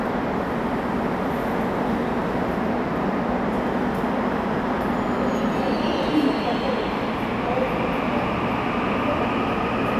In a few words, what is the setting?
subway station